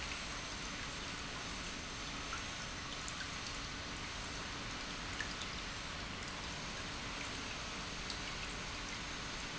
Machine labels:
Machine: pump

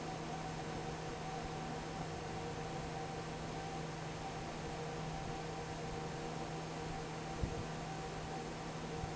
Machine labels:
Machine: fan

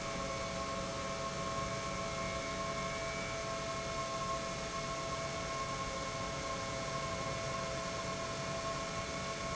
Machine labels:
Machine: pump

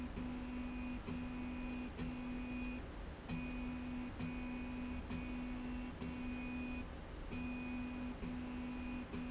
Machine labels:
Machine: slide rail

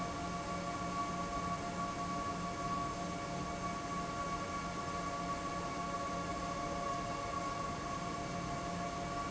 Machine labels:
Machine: fan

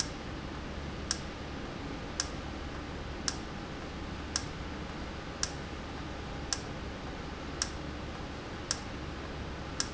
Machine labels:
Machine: valve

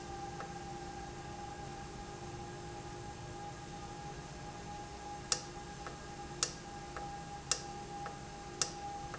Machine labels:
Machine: valve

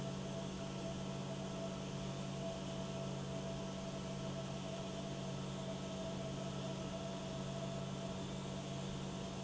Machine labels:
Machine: pump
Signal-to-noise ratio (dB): 0 dB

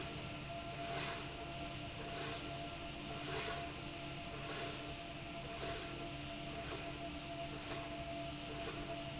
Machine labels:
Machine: slide rail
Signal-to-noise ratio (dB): 0 dB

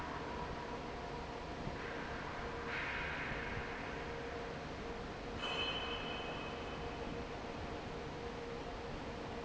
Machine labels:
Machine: fan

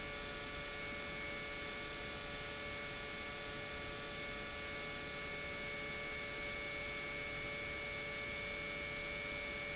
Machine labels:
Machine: pump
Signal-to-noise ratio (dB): 6 dB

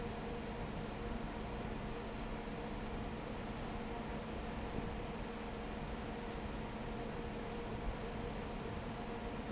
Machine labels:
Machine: fan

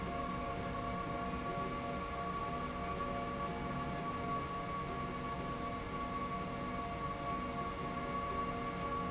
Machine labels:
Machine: slide rail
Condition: normal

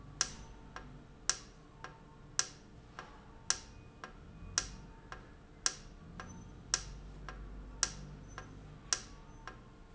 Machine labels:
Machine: valve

